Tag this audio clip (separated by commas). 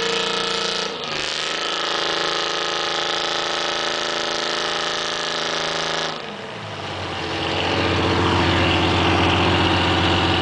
Vehicle